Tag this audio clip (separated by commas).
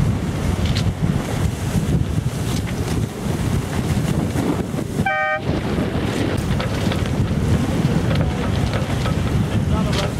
Waves, Boat, Wind noise (microphone), Ocean, Sailboat, sailing, Wind